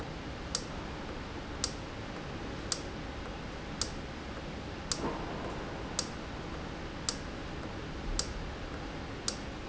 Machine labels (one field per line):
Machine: valve